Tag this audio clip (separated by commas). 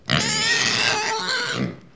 Animal, livestock